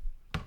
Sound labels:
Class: cupboard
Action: opening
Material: wooden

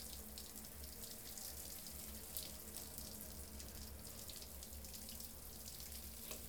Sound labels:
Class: water tap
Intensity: high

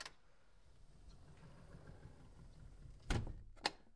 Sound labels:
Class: window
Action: closing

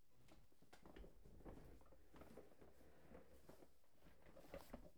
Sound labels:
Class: furniture moving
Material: plastic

